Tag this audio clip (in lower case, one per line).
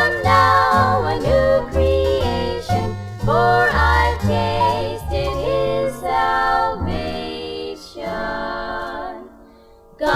female singing
music
choir